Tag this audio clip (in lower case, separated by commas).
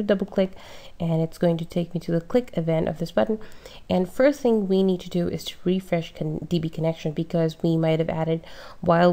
speech